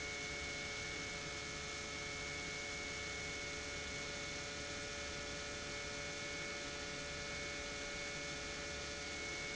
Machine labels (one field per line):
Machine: pump